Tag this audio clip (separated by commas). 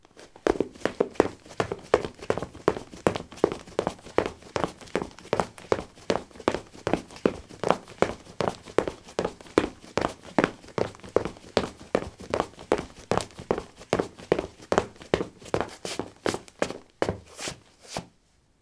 Run